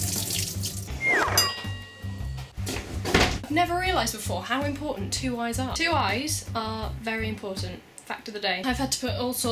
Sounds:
inside a small room, Music, Speech

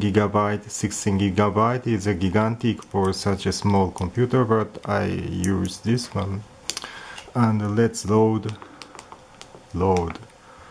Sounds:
Speech

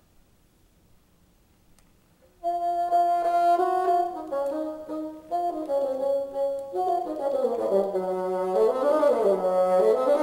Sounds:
playing bassoon

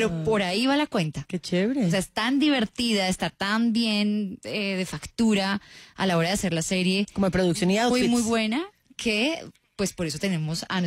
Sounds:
Speech

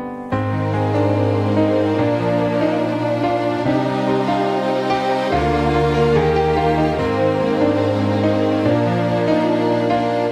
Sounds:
Background music

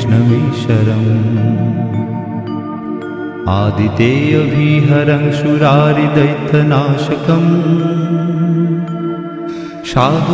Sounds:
Mantra, Music

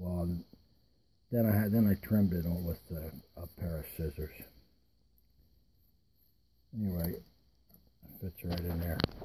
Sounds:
Speech

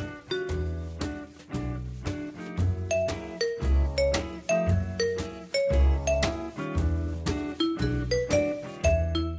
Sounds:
Music, Ding-dong

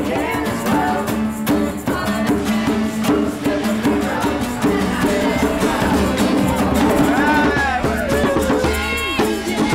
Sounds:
Choir, Female singing, Male singing, Music

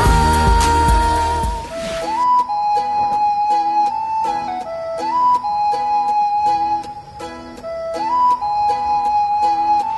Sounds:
Music

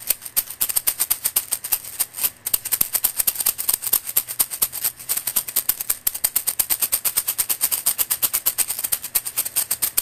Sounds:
Music

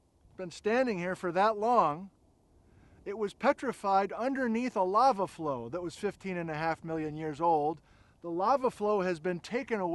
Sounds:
Speech

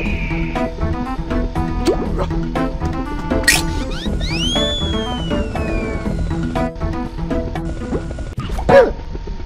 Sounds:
Music

